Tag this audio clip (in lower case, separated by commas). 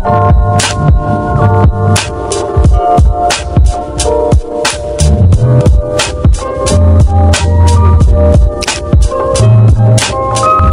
music